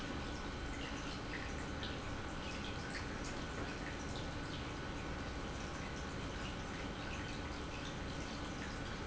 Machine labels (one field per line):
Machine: pump